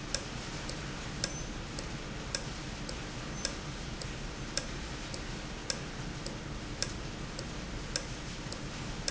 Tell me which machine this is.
valve